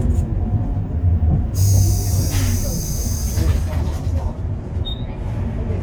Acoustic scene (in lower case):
bus